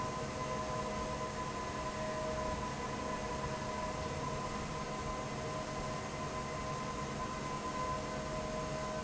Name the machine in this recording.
fan